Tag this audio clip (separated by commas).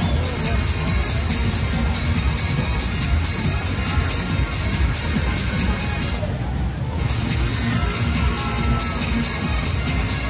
Speech, Music